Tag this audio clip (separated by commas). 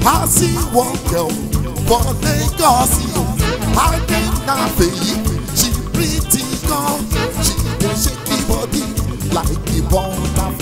Ska, Music